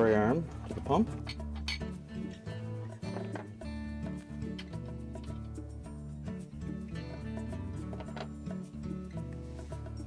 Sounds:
music, speech

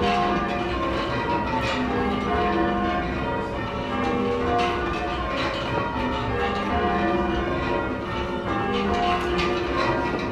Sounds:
change ringing (campanology)

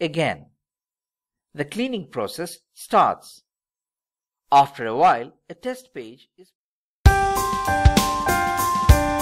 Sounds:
speech, music

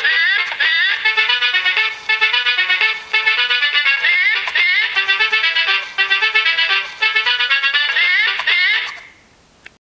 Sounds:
music

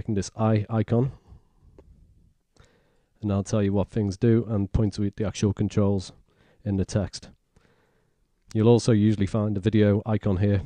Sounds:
speech, inside a small room

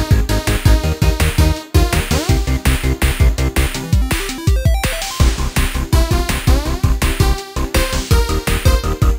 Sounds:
music

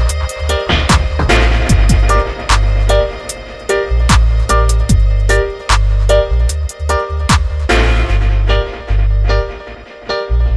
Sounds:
music, musical instrument

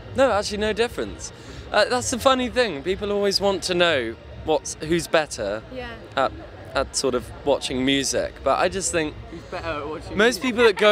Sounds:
speech

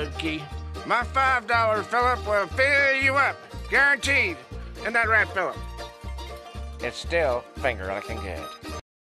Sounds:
speech, music

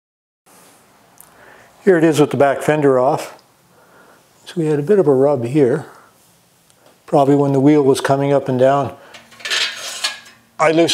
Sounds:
speech

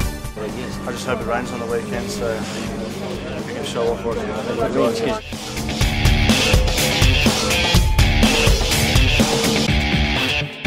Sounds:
speech, music

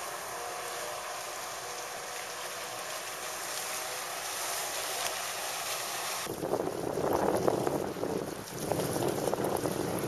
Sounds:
wind, water vehicle, wind noise (microphone), motorboat

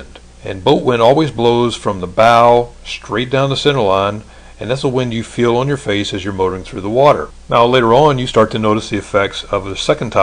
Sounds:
speech

